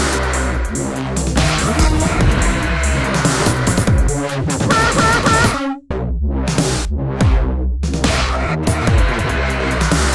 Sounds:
music
bleat

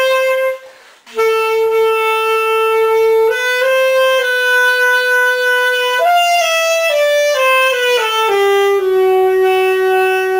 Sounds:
saxophone
brass instrument
playing saxophone

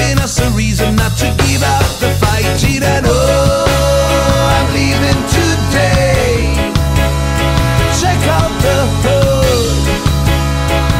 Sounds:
music

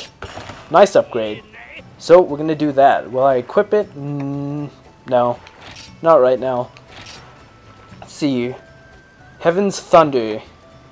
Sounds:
music
speech

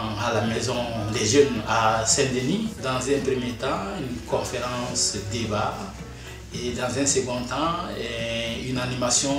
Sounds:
music
speech

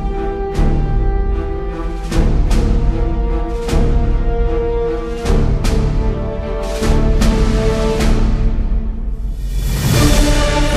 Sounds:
music

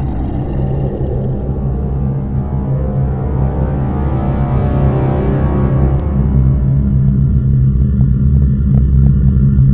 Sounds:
music

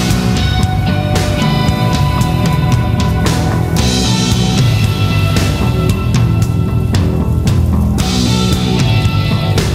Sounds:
music

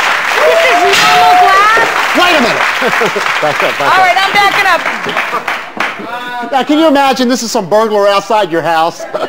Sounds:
speech

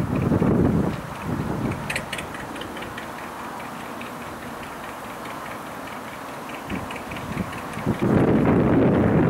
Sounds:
wind
wind noise (microphone)
boat
motorboat

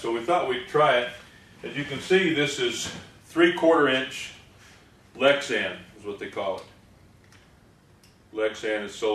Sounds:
speech

